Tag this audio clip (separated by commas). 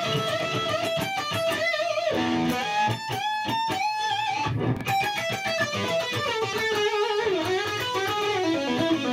Musical instrument, Guitar, Music, Rock music, Electric guitar, Plucked string instrument